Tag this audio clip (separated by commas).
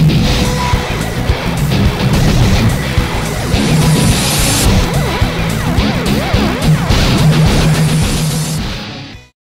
Music